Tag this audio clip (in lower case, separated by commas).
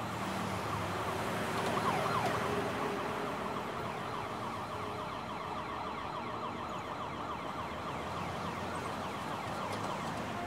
emergency vehicle, ambulance (siren), siren